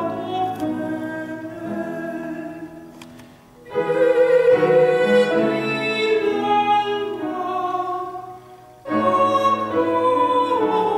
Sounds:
Music

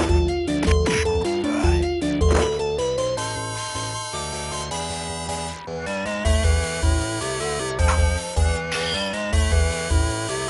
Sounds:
Music, Video game music

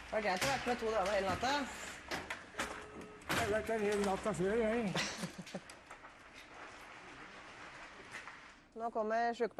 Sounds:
Speech

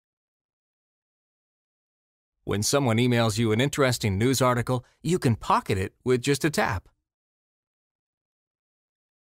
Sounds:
Speech

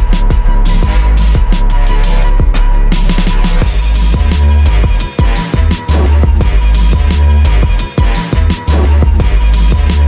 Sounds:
Music

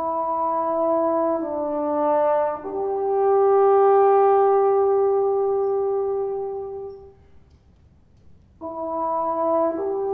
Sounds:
Music, French horn, playing french horn

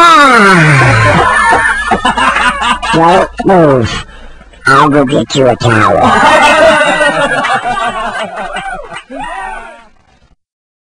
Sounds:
Speech

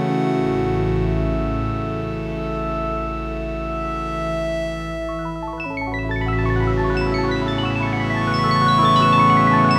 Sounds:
Echo, Music

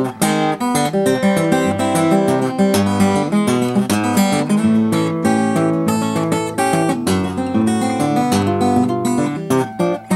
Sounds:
Music

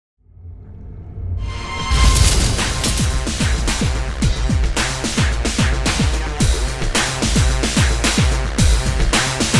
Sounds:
Trance music

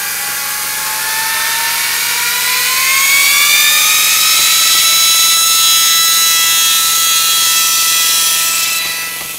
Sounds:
Printer

